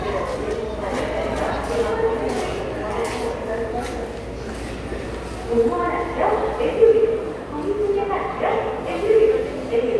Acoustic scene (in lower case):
subway station